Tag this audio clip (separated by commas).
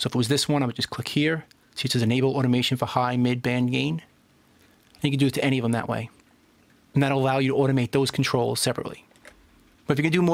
Speech